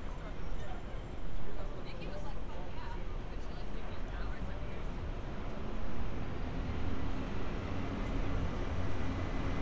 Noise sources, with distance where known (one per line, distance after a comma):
large-sounding engine, far
person or small group talking, far